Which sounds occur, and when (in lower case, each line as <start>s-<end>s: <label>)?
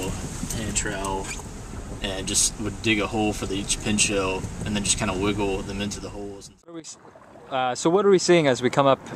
0.0s-0.2s: man speaking
0.0s-6.6s: car
0.4s-0.5s: tick
0.5s-1.3s: man speaking
1.0s-1.1s: tick
1.2s-1.4s: squeak
2.0s-2.5s: man speaking
2.6s-4.4s: man speaking
4.4s-4.7s: generic impact sounds
4.6s-6.5s: man speaking
5.6s-5.7s: tick
6.6s-6.9s: man speaking
6.9s-9.1s: water
6.9s-9.1s: water vehicle
7.4s-9.0s: man speaking